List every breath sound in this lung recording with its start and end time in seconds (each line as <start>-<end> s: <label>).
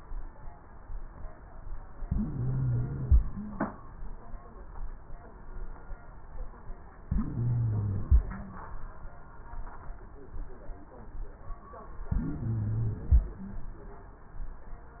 2.01-3.31 s: inhalation
2.01-3.31 s: wheeze
7.02-8.32 s: inhalation
7.02-8.32 s: wheeze
12.07-13.37 s: inhalation
12.07-13.37 s: wheeze